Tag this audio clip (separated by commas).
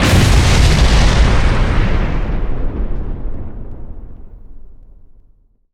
Explosion